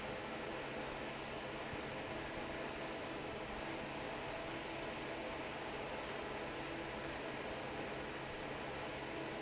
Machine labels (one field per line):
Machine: fan